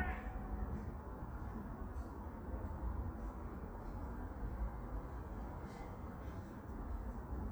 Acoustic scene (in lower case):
park